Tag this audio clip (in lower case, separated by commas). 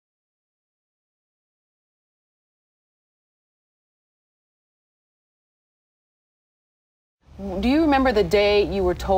speech